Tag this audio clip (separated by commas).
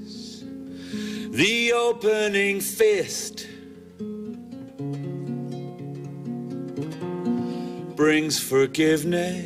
Male singing, Music